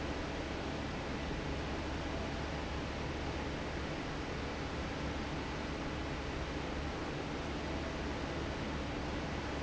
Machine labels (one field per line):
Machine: fan